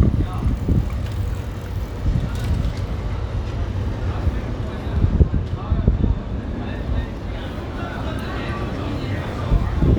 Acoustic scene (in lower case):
residential area